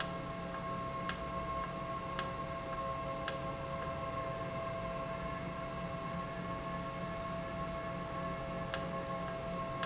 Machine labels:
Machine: valve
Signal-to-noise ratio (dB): -6 dB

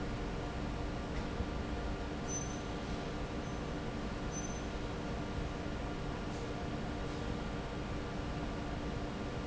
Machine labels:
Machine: fan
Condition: normal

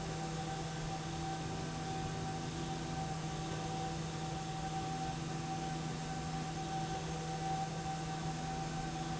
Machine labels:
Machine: slide rail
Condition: normal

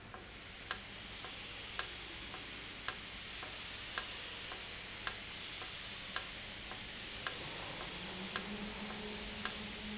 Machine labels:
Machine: valve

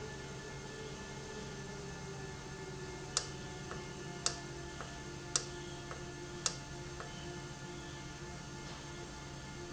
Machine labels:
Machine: valve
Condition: normal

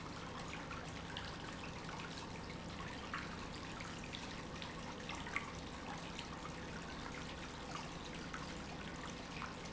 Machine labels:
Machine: pump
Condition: normal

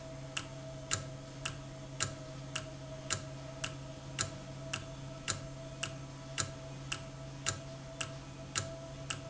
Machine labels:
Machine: valve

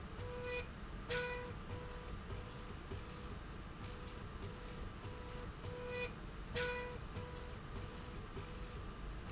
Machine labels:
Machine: slide rail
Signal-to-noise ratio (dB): 6 dB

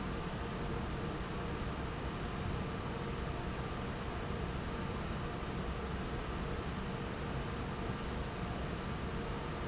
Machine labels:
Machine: fan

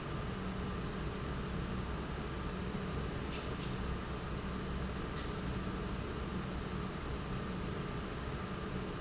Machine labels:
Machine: pump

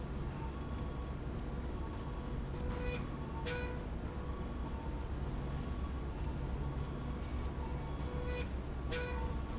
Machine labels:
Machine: slide rail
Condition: normal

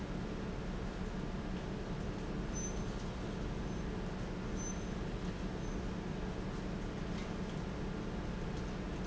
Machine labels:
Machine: fan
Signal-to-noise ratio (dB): -6 dB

